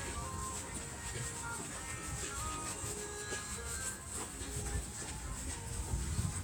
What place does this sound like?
residential area